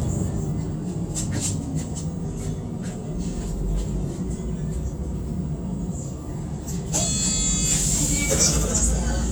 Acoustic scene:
bus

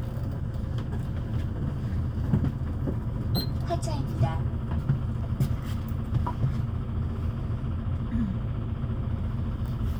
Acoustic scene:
bus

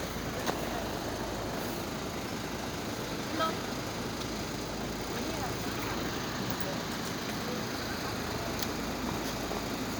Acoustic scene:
street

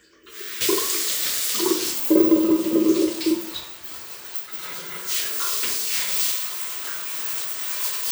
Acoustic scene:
restroom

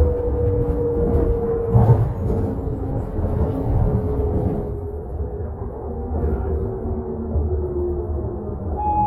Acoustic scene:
bus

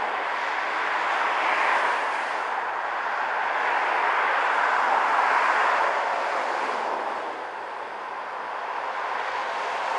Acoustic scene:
street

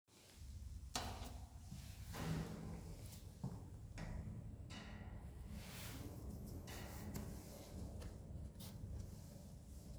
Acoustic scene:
elevator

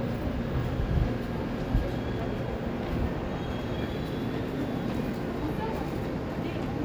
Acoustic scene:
subway station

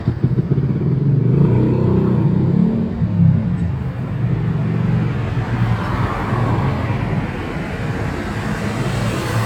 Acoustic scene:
street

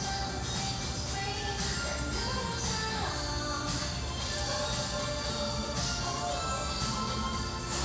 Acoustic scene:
restaurant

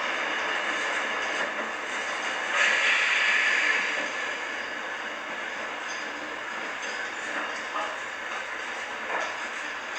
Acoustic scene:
subway train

